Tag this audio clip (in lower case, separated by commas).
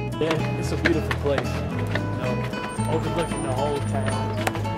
speech, music